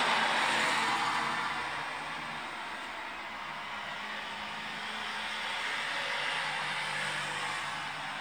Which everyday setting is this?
street